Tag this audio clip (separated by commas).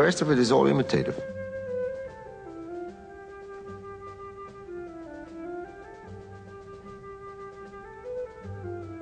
Music, Speech, Musical instrument